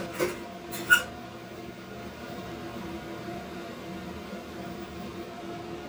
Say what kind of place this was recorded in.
kitchen